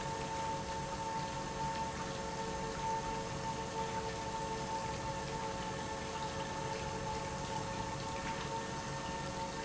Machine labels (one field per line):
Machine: pump